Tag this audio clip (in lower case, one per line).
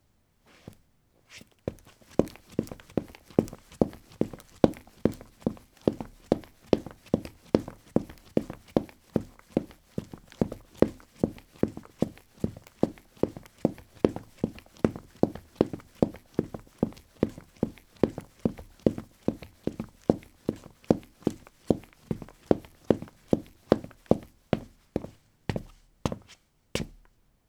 run